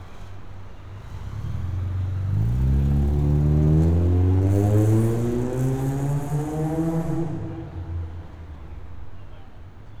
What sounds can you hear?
medium-sounding engine